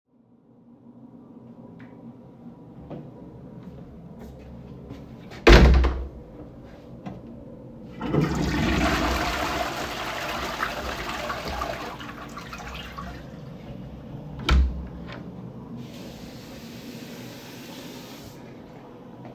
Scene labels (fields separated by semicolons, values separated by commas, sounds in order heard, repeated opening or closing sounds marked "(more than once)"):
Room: lavatory; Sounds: footsteps, door (more than once), toilet flushing, running water